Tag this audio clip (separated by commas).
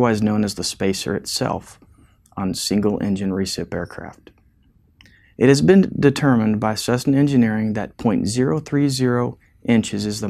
Speech